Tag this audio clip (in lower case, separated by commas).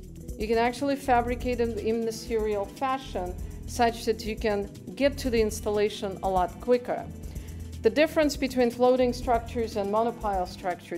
speech